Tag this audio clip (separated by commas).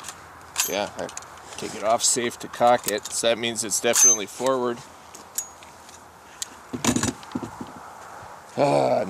Speech, Walk